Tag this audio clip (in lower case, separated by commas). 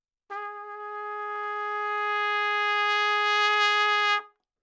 trumpet, music, musical instrument, brass instrument